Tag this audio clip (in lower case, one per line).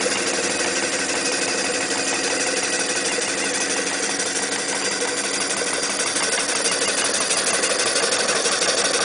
medium engine (mid frequency)
engine
idling